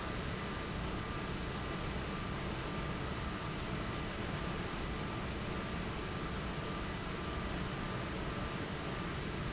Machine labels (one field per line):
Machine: fan